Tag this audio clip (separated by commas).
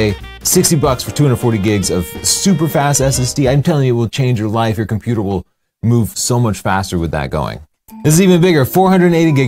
Music, Speech